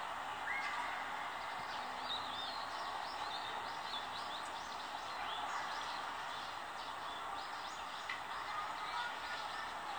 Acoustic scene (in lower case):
residential area